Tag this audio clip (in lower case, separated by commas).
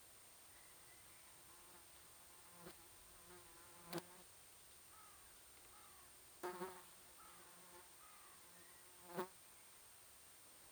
wild animals, insect, animal, buzz